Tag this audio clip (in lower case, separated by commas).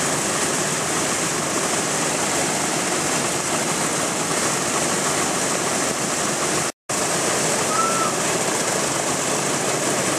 vehicle, aircraft, fixed-wing aircraft